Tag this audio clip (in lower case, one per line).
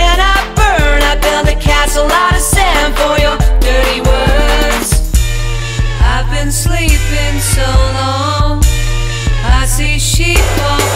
music